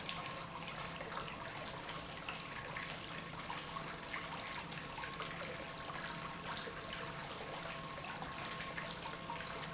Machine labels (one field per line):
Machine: pump